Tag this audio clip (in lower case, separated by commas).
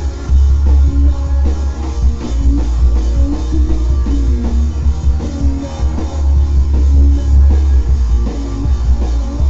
music, rock and roll